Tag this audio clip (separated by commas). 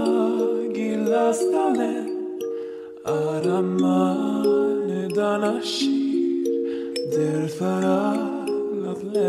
Music